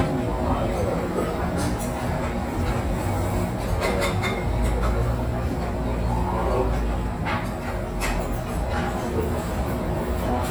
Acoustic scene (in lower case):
restaurant